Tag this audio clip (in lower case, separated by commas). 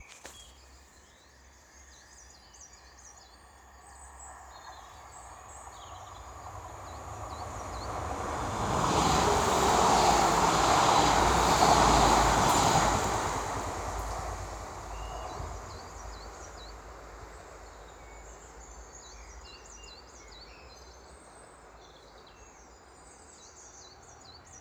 train, animal, bird, rail transport, wild animals, bird vocalization, vehicle